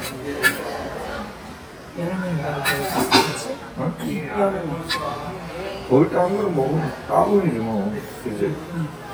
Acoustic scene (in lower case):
crowded indoor space